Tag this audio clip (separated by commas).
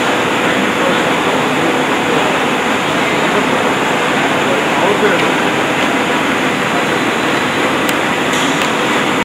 Speech